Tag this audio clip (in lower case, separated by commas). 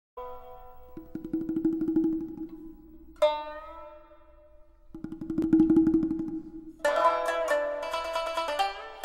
tabla, drum, percussion